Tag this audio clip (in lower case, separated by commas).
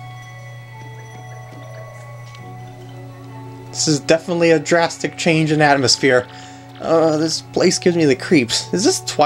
speech, music